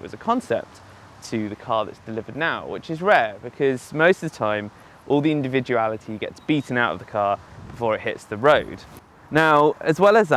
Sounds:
speech

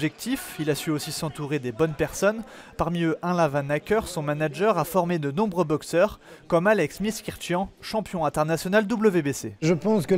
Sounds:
speech

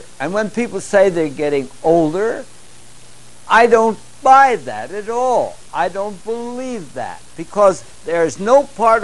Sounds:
speech

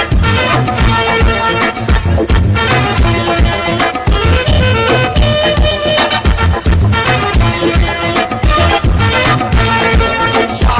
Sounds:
music

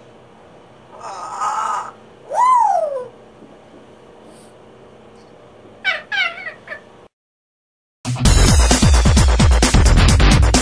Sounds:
music

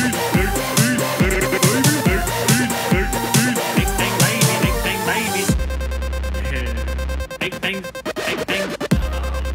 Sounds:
music, dubstep

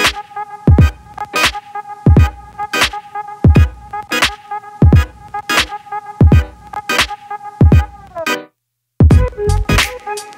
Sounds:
music

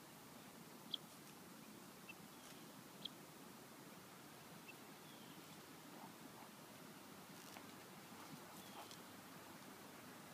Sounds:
animal

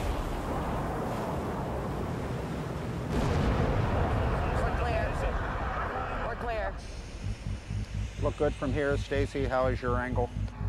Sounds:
speech, explosion

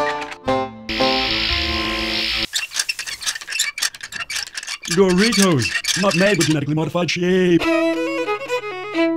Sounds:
music, speech

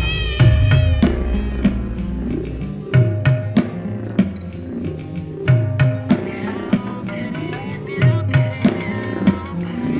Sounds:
domestic animals, cat, music, meow

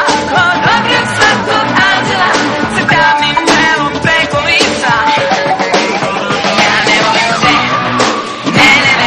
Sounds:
music, singing

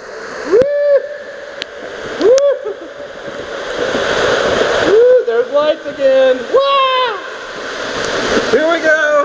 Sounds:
speech

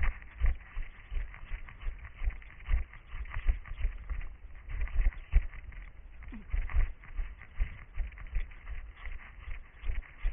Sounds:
run

